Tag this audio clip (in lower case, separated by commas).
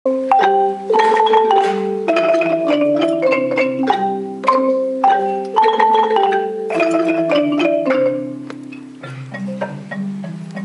marimba, mallet percussion, glockenspiel